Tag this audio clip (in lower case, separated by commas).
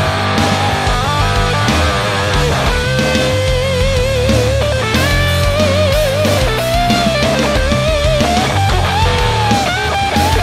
music, musical instrument, heavy metal, guitar